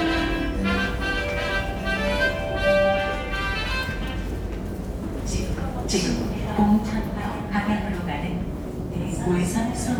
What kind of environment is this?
subway station